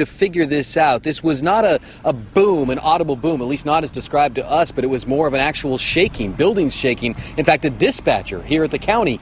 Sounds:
Speech

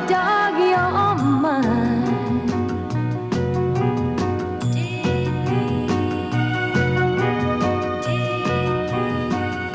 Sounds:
Music

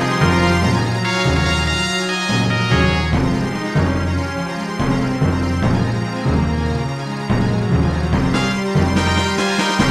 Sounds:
Music

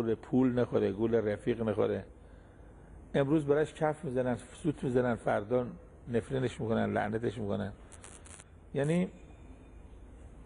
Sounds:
Speech

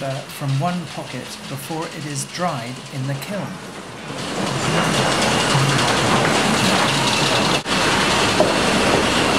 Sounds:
Wood, Speech

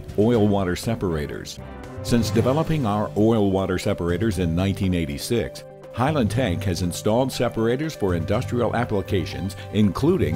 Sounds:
Speech, Music

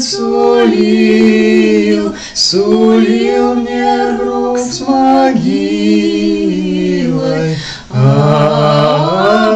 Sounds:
A capella, Singing

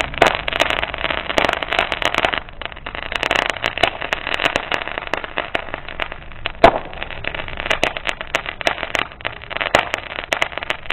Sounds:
Firecracker

